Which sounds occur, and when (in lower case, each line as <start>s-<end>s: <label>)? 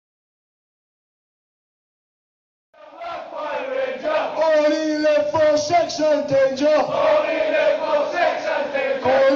2.7s-4.4s: battle cry
2.7s-9.3s: background noise
4.4s-6.6s: male singing
6.9s-9.1s: battle cry